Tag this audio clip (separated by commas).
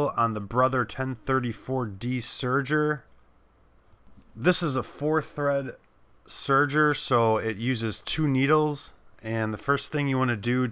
Speech